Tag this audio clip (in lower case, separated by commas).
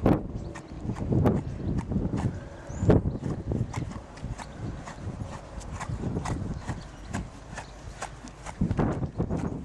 clip-clop, horse, horse clip-clop, animal